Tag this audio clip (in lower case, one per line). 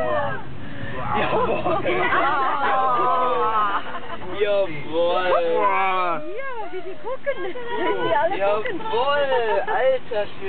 speech